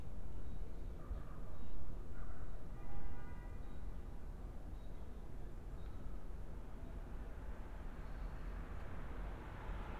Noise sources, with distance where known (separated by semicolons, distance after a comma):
car horn, far